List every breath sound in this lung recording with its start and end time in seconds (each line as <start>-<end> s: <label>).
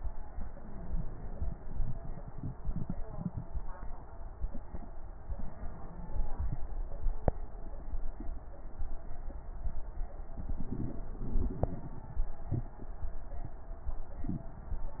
0.32-1.43 s: inhalation
0.32-1.43 s: wheeze
5.33-6.59 s: inhalation
5.49-6.61 s: wheeze